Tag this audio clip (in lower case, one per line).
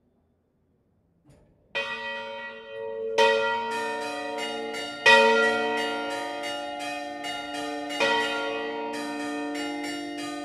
church bell